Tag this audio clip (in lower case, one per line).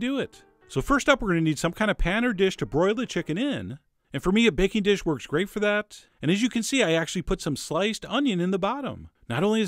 speech